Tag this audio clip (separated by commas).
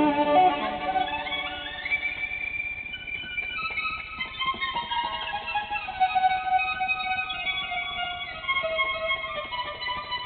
Plucked string instrument, Cello, Strum, Guitar, fiddle, Pizzicato, Music, Musical instrument